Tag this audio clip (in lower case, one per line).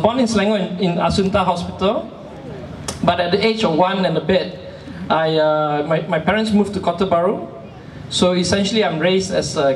speech
narration
male speech